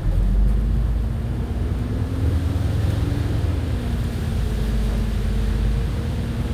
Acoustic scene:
bus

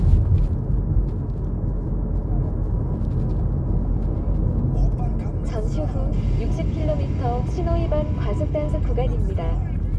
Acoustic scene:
car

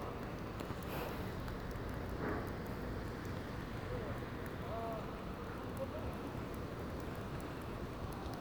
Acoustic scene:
residential area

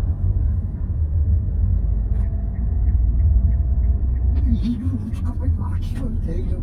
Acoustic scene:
car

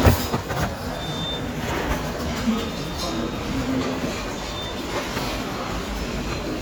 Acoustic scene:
restaurant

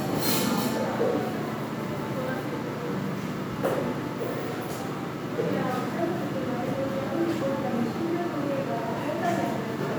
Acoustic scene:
crowded indoor space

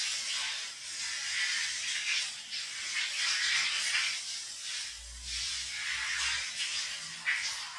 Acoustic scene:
restroom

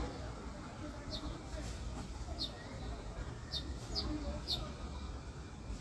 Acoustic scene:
residential area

